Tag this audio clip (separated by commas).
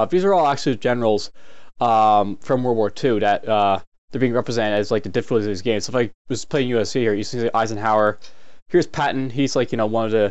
Speech